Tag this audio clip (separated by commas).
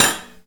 silverware, home sounds